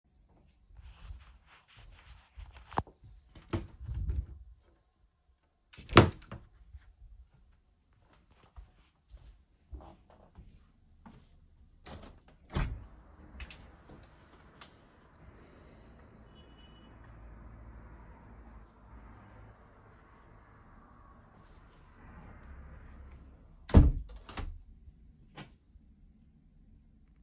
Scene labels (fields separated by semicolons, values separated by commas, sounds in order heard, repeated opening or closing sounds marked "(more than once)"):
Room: bedroom; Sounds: window (more than once), wardrobe or drawer (more than once), footsteps